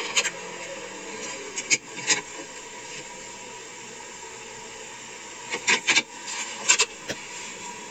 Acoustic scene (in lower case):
car